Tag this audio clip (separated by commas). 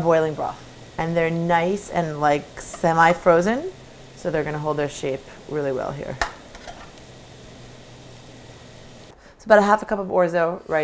Speech, inside a small room